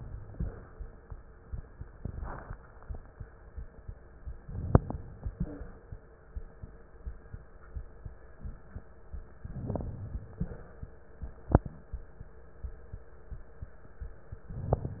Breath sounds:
4.40-5.28 s: inhalation
4.40-5.28 s: crackles
4.42-5.28 s: inhalation
5.32-5.68 s: wheeze
9.44-10.32 s: inhalation
9.44-10.32 s: crackles
14.46-15.00 s: inhalation
14.46-15.00 s: crackles

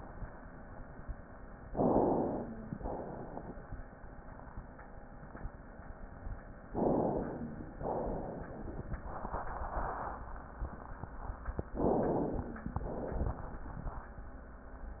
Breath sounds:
1.65-2.71 s: inhalation
2.73-3.80 s: exhalation
6.70-7.76 s: inhalation
7.76-8.86 s: exhalation
11.75-12.73 s: inhalation
12.73-13.53 s: exhalation

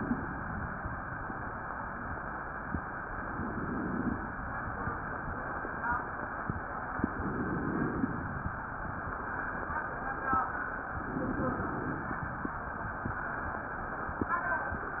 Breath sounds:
3.17-4.38 s: inhalation
7.10-8.48 s: inhalation
10.95-12.33 s: inhalation

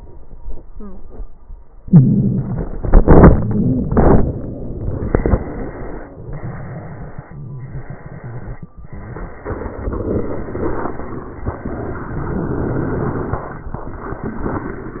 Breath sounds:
1.79-2.76 s: inhalation
2.76-6.13 s: exhalation

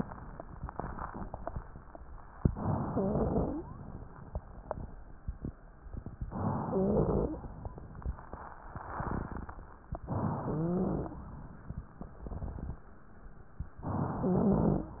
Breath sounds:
2.45-3.64 s: inhalation
2.93-3.66 s: wheeze
6.28-7.40 s: inhalation
6.68-7.40 s: wheeze
10.04-11.18 s: inhalation
10.46-11.17 s: wheeze
13.83-14.99 s: inhalation
14.21-14.99 s: wheeze

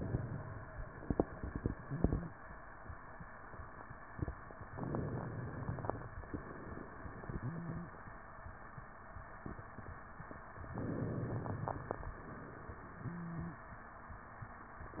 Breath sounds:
4.78-6.04 s: inhalation
6.30-7.97 s: exhalation
7.37-7.97 s: wheeze
10.72-12.09 s: inhalation
12.17-13.67 s: exhalation
13.03-13.67 s: wheeze

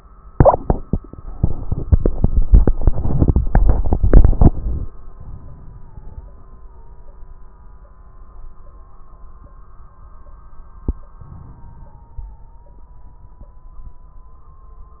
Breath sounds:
5.16-6.66 s: inhalation
5.16-6.66 s: crackles
11.23-12.94 s: inhalation
11.23-12.94 s: crackles

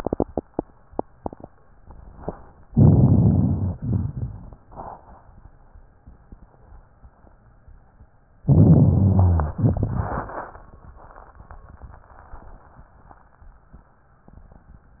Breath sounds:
2.68-3.66 s: rhonchi
2.71-3.68 s: inhalation
3.78-4.67 s: exhalation
3.78-4.67 s: crackles
8.45-9.54 s: inhalation
8.45-9.54 s: rhonchi
9.60-10.66 s: exhalation
9.60-10.66 s: crackles

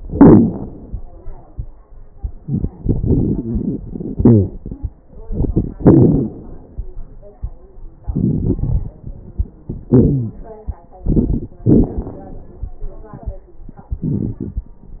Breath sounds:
0.00-0.73 s: exhalation
0.00-0.73 s: crackles
2.44-4.11 s: inhalation
2.44-4.11 s: crackles
4.17-4.56 s: exhalation
4.17-4.56 s: wheeze
5.24-5.74 s: inhalation
5.24-5.74 s: crackles
5.73-6.33 s: exhalation
5.73-6.33 s: wheeze
8.05-8.97 s: inhalation
8.05-8.97 s: crackles
9.92-10.39 s: exhalation
9.92-10.39 s: wheeze
11.06-11.54 s: inhalation
11.06-11.54 s: crackles
11.65-12.49 s: exhalation
11.65-12.49 s: crackles
13.90-14.74 s: inhalation
13.90-14.74 s: crackles

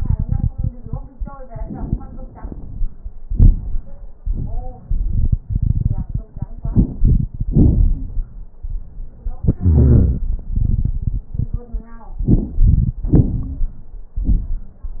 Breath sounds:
6.57-7.32 s: inhalation
6.57-7.32 s: crackles
7.29-8.31 s: exhalation
7.35-8.31 s: crackles
9.62-10.27 s: wheeze
12.28-12.96 s: inhalation
12.28-12.96 s: crackles
13.06-13.80 s: exhalation
13.06-13.80 s: crackles

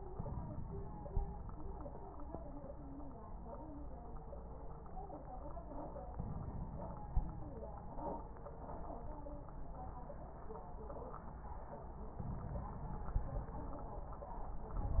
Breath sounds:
6.13-7.57 s: inhalation
12.16-13.56 s: inhalation

